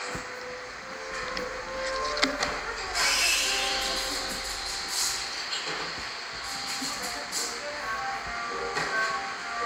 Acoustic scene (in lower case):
cafe